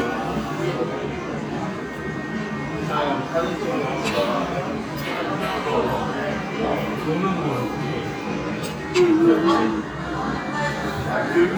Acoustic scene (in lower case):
restaurant